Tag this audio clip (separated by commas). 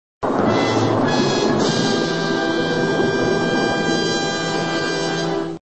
Music